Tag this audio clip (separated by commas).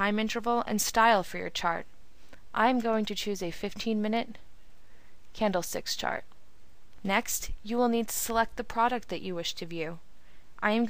Speech